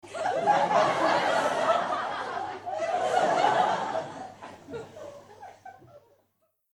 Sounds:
laughter, human group actions, human voice, crowd

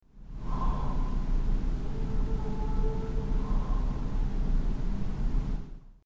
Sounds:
rail transport, train, vehicle

